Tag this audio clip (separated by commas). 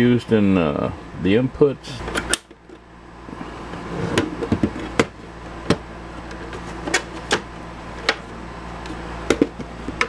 Speech